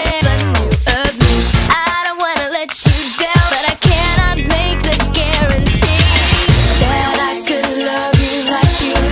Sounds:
Music

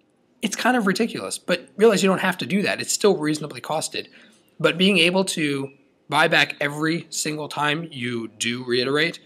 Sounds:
Speech

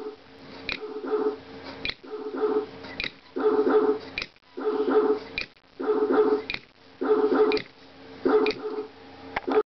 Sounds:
Bow-wow, Dog

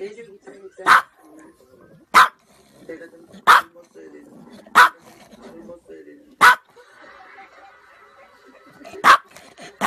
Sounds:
dog barking

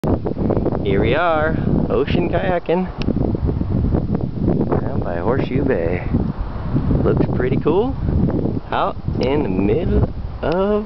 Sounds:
Wind noise (microphone), Wind

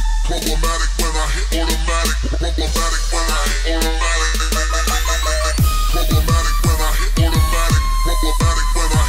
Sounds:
Music, Dubstep

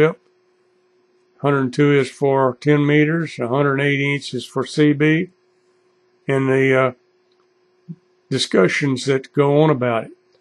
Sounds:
Speech

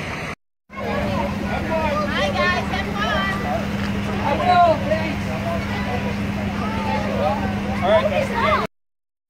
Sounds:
Speech, Vehicle

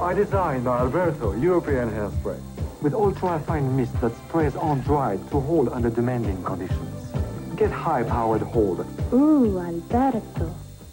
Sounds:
Music, Speech

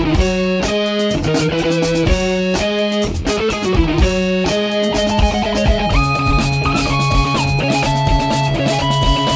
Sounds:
Guitar, Electric guitar, Music, Strum, Musical instrument, Plucked string instrument

